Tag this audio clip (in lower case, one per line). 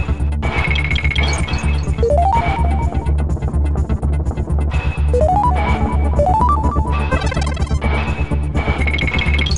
music